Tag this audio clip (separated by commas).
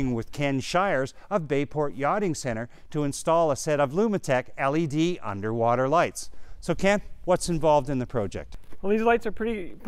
Speech